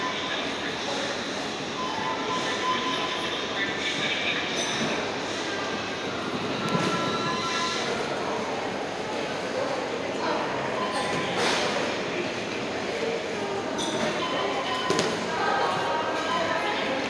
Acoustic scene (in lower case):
subway station